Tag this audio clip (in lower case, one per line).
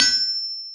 tools